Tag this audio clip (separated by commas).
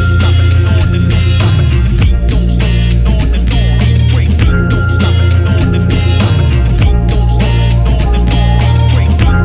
Music